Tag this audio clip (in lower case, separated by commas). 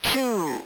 human voice, speech, speech synthesizer